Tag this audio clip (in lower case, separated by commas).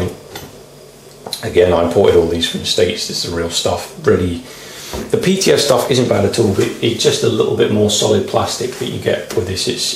speech, inside a small room